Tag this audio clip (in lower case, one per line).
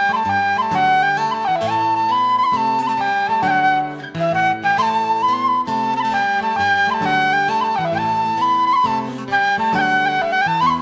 music